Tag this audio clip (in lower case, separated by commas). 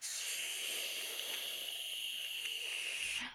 hiss